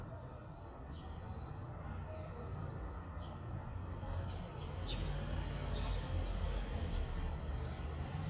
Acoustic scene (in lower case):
residential area